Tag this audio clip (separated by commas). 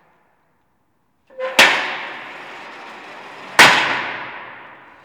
Door, home sounds, Sliding door